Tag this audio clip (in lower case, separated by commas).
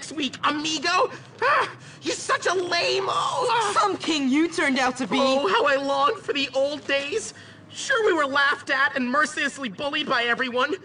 speech